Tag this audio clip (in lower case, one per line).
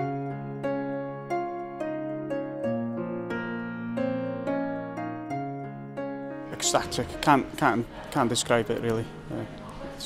music
speech